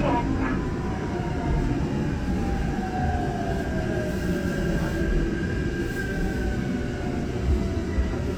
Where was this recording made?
on a subway train